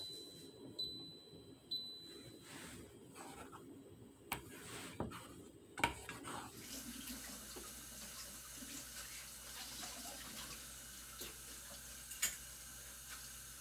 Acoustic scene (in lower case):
kitchen